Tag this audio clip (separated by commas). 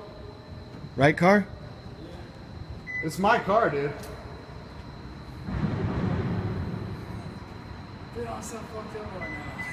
Speech